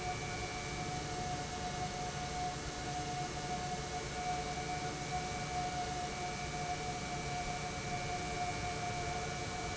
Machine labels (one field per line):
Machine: pump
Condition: normal